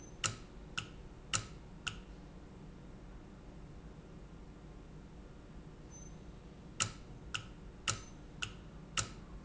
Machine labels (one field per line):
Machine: valve